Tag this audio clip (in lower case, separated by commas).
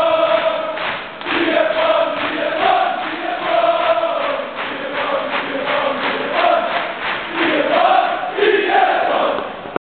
male singing